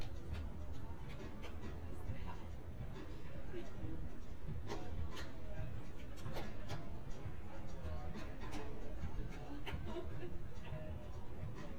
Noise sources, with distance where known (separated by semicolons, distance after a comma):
background noise